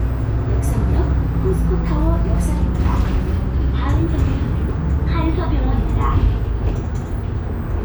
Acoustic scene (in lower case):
bus